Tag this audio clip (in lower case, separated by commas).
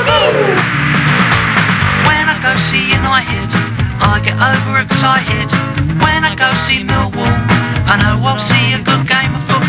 music, funny music